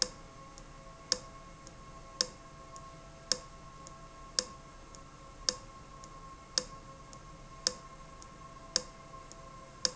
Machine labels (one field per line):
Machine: valve